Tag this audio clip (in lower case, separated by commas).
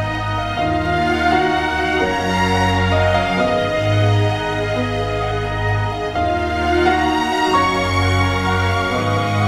background music